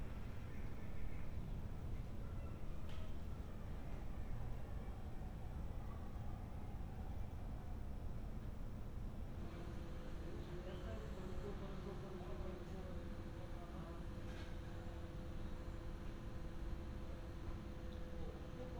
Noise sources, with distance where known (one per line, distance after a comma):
background noise